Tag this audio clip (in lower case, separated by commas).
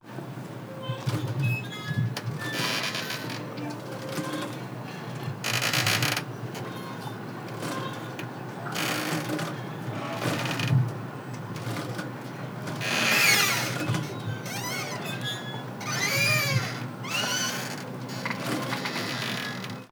boat, vehicle